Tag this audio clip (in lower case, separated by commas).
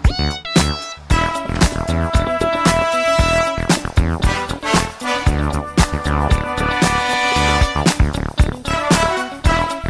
music